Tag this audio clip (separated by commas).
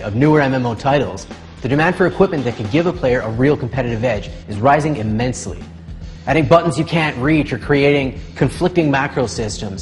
Speech, Music